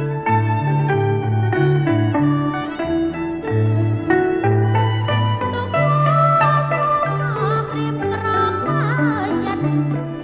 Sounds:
Pizzicato, Zither

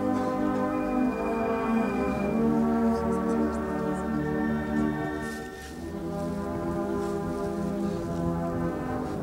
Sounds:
Music

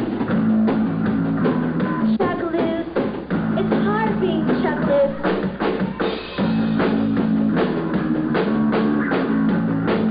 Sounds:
Music, Speech

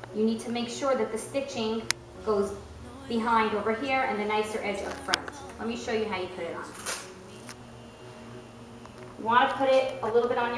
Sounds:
Speech, Music

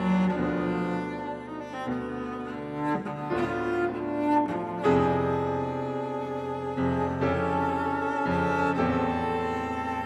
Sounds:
Keyboard (musical), Bowed string instrument, Music, Double bass, Piano, playing cello, Orchestra, Musical instrument, Cello

